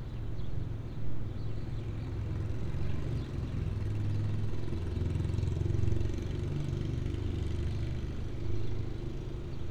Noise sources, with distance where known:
medium-sounding engine, near

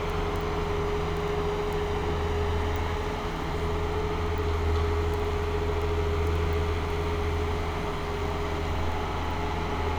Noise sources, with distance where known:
large-sounding engine, near

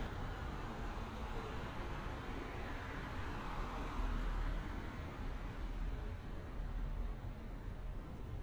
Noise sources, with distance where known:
background noise

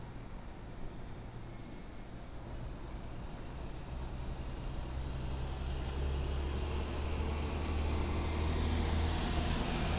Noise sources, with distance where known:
engine of unclear size, near

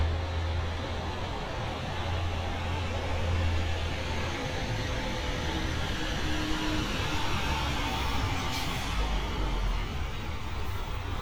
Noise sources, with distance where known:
large-sounding engine, near

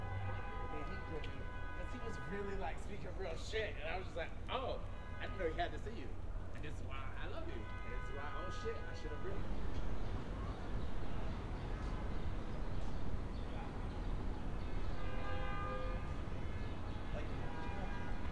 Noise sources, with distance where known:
car horn
person or small group talking

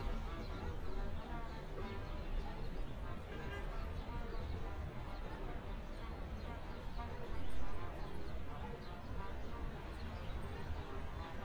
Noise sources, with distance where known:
music from a fixed source, far

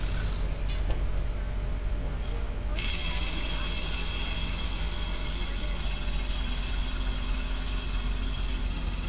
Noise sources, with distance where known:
engine of unclear size
unidentified impact machinery, near

